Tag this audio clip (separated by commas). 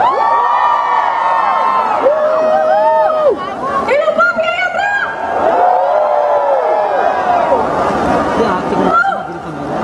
Speech, Chatter